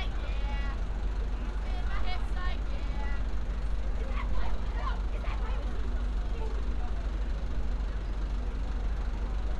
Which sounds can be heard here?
person or small group talking, person or small group shouting